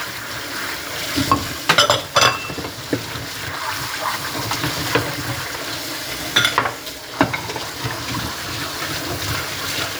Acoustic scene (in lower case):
kitchen